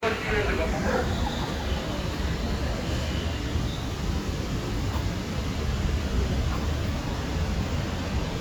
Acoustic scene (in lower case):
residential area